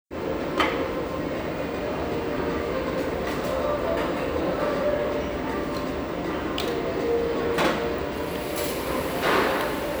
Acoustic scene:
restaurant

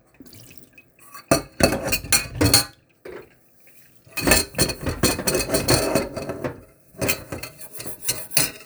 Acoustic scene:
kitchen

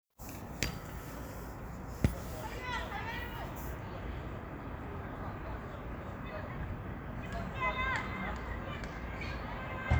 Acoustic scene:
park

